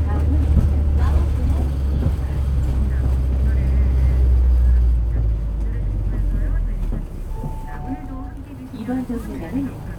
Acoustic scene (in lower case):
bus